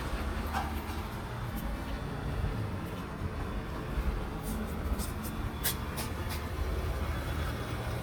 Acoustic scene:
residential area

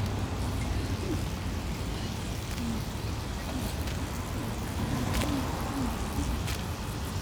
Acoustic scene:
residential area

